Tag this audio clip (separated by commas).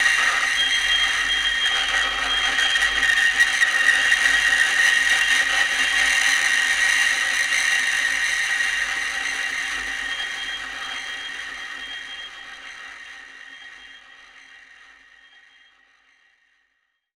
Screech